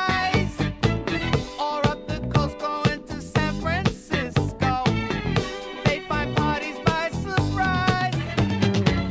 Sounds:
funk, music

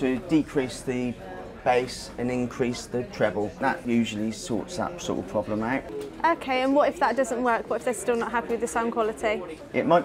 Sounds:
music, speech

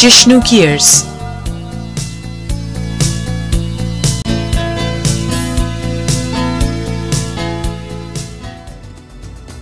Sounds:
music, speech

